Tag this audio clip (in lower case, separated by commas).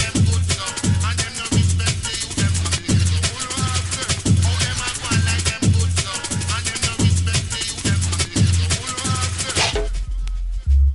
drum and bass, music